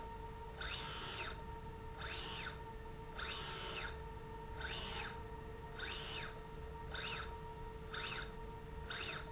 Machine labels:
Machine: slide rail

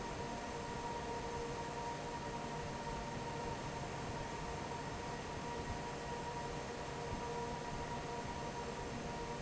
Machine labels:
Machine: fan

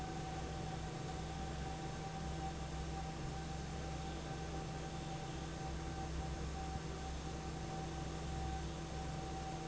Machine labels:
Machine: fan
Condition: normal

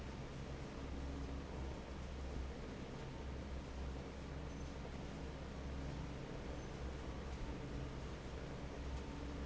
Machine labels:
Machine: fan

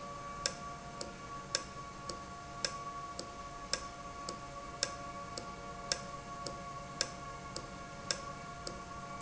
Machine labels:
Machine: valve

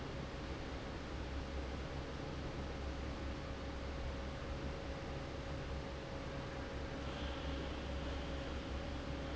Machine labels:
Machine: fan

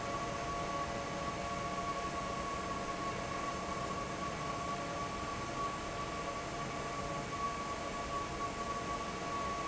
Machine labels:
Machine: fan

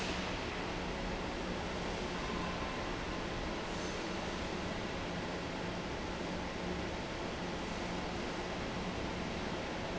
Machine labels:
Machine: fan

